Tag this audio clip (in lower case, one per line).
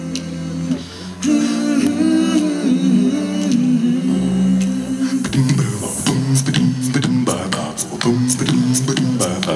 music
dance music